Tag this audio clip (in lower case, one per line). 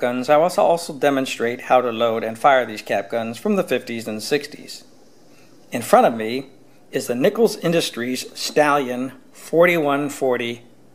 speech